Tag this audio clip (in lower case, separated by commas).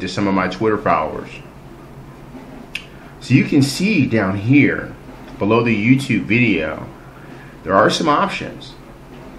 speech